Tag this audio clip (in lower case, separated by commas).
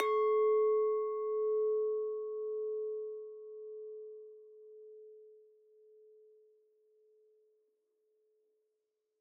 clink, glass